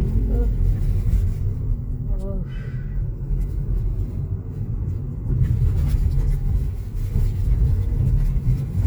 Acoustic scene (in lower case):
car